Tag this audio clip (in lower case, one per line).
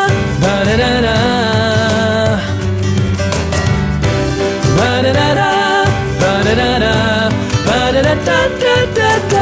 music
piano
musical instrument
keyboard (musical)